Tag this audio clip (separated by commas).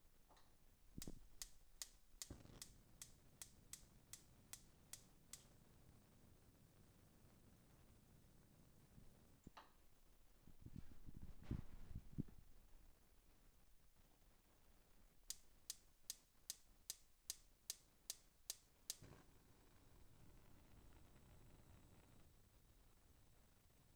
Fire